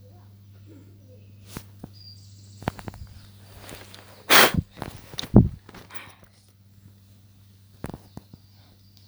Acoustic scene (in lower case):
park